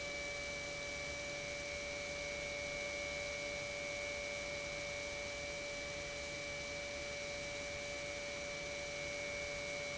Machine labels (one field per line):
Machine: pump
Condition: normal